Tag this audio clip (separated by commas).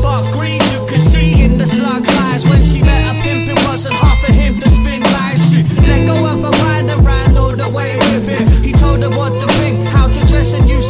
Music